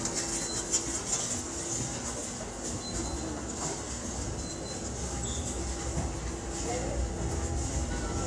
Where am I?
in a subway station